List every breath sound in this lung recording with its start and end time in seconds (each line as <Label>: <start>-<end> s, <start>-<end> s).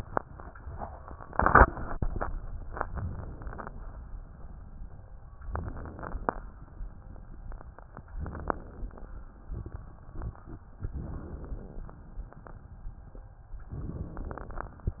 Inhalation: 5.31-6.54 s, 8.11-9.34 s, 10.79-12.02 s, 13.76-14.99 s